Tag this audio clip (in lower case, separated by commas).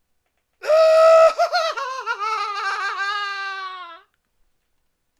laughter, human voice